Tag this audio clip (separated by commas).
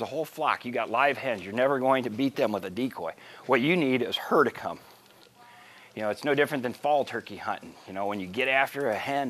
Speech